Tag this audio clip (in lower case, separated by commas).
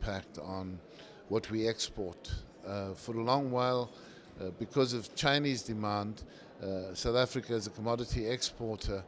speech, monologue, male speech